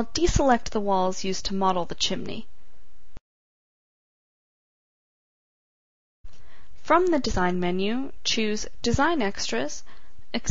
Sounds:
speech

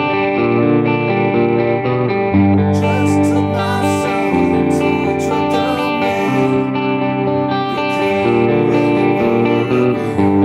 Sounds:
musical instrument, music, plucked string instrument, guitar

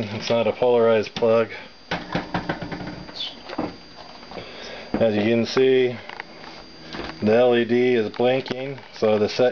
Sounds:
speech

